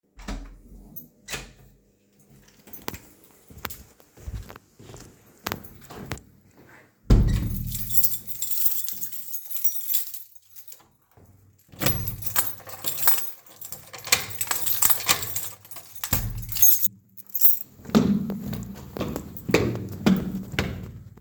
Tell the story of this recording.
Having done the assignment you both leave from your friend's place open and close the door; lock it and leave.